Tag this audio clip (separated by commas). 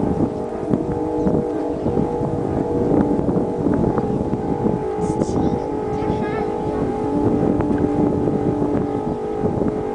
wind noise, Wind noise (microphone), Speech